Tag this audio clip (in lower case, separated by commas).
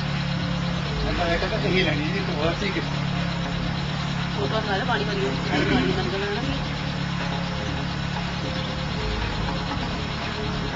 vehicle, car, speech